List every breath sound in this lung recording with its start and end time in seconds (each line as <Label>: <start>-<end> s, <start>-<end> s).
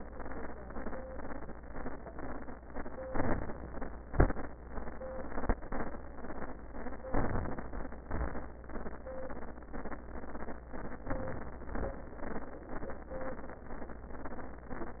Inhalation: 3.03-4.11 s, 7.14-8.12 s, 11.05-11.76 s
Exhalation: 4.11-4.73 s, 8.12-8.74 s, 11.78-12.49 s